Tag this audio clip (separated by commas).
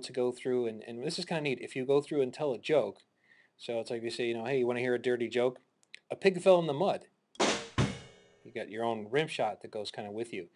Speech, Music